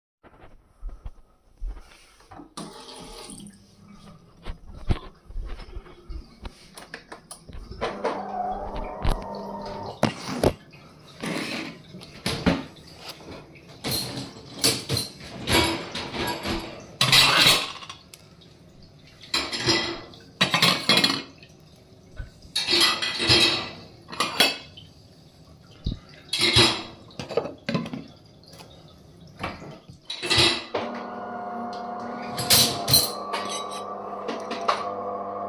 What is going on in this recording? I did the dishes putting them in the dish washer while the coffee_machine and water was runnning